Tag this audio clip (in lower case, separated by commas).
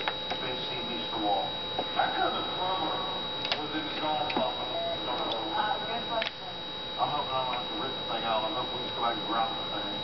speech